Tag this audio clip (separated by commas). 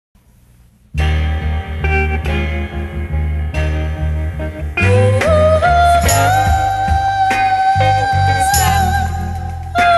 Theremin